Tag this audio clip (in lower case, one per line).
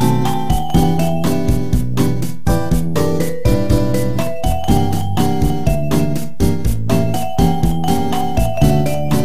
music